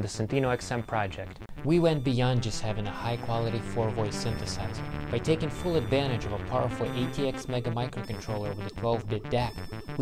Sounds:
Music, Speech

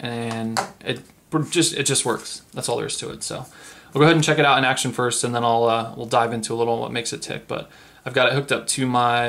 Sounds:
Speech

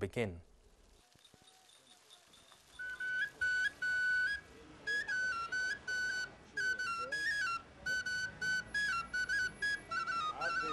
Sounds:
Speech, Music, outside, rural or natural

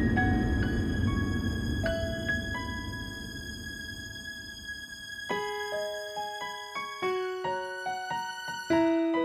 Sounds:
Music

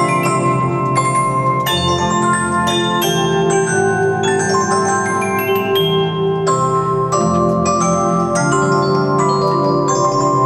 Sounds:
Music, Musical instrument

